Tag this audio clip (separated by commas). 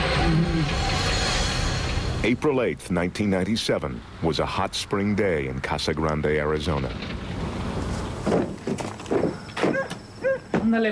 Speech